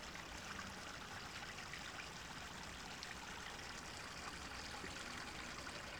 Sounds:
Stream, Water, Liquid

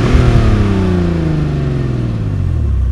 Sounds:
Vehicle, Car, Motor vehicle (road)

